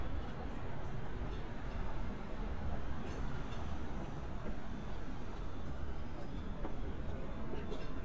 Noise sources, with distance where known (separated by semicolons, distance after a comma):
person or small group talking